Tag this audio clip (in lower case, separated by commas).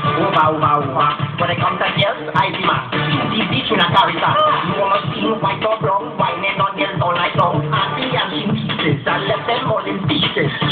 music